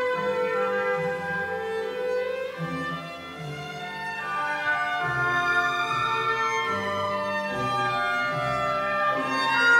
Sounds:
fiddle, Musical instrument, Music

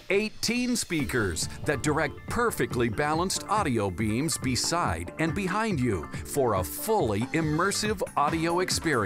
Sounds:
Speech, Music

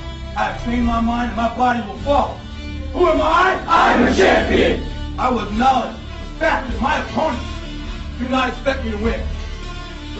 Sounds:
Speech, Music, Male speech

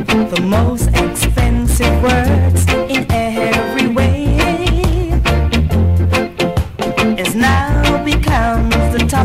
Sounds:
Music, Rhythm and blues

